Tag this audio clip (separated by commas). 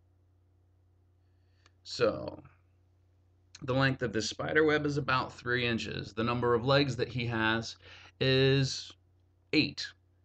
Speech, inside a small room